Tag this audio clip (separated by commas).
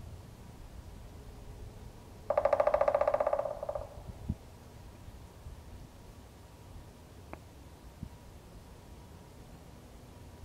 woodpecker pecking tree